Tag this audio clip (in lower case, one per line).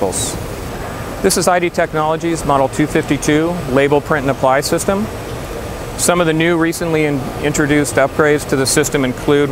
printer
speech